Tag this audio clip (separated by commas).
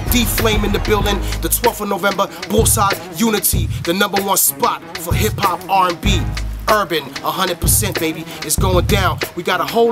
Speech, Music